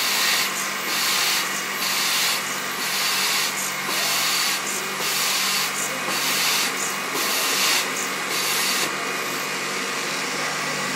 Drill working multiple times